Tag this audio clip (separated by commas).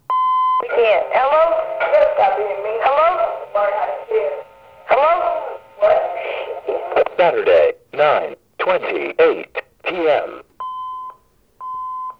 Alarm, Telephone